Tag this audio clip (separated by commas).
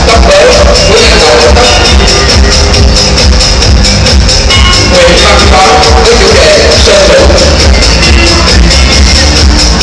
Speech, Music